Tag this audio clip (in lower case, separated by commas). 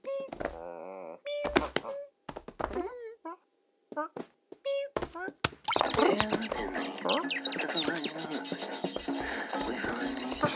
music, inside a small room